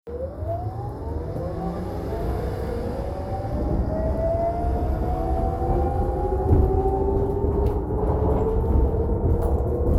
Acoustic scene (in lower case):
bus